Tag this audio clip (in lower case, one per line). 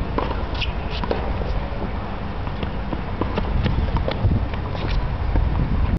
playing tennis